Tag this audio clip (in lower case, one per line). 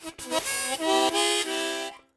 harmonica
music
musical instrument